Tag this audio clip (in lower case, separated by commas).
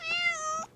meow, cat, animal, pets